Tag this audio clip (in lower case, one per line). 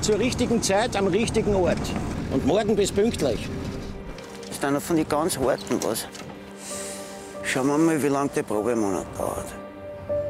speech
music